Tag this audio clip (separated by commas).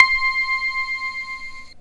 Music, Keyboard (musical), Musical instrument